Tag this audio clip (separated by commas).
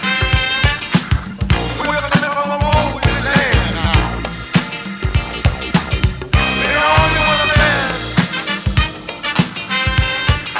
Music